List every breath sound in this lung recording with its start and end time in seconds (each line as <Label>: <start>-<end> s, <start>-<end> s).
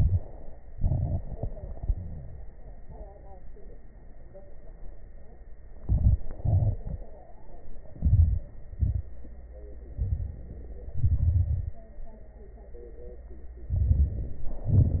Inhalation: 5.82-6.41 s, 7.90-8.48 s, 9.86-10.56 s, 13.67-14.63 s
Exhalation: 0.68-2.49 s, 6.46-7.04 s, 8.59-9.18 s, 10.88-11.84 s, 14.66-15.00 s
Crackles: 10.88-11.84 s, 13.65-14.62 s, 14.66-15.00 s